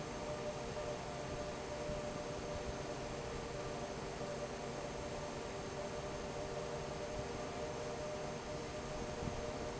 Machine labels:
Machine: fan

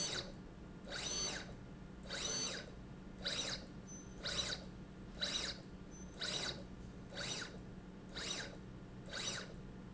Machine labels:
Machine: slide rail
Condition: abnormal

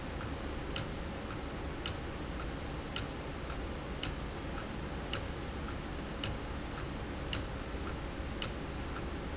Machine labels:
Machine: valve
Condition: abnormal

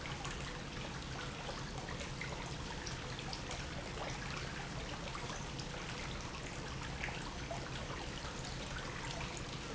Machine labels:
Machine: pump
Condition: normal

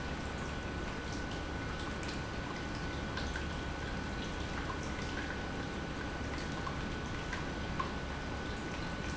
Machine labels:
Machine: pump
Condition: normal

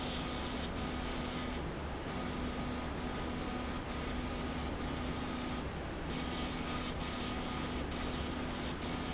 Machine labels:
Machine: slide rail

